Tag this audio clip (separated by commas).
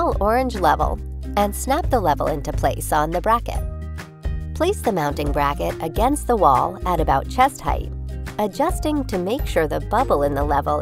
Speech, Music